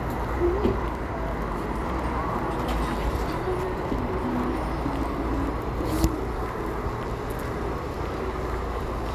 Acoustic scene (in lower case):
residential area